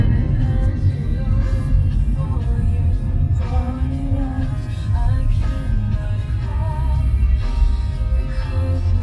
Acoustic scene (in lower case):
car